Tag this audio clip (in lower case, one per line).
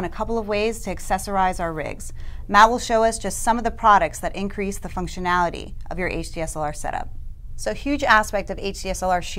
speech